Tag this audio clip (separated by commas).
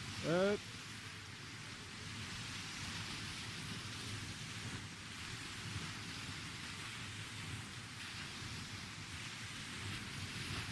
Speech